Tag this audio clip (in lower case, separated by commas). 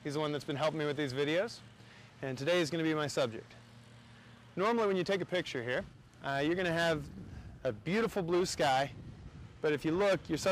speech